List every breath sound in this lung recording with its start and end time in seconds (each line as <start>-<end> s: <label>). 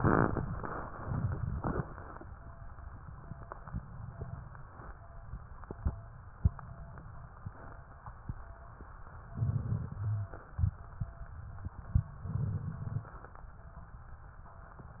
9.36-10.12 s: inhalation
9.97-10.28 s: rhonchi
12.32-13.09 s: inhalation